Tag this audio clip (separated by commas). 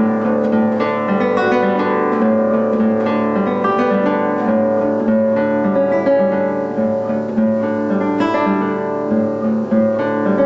Guitar, Acoustic guitar, Music, Strum, Musical instrument, Plucked string instrument